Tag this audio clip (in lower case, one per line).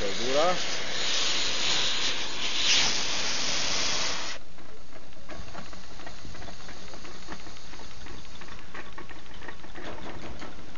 engine
speech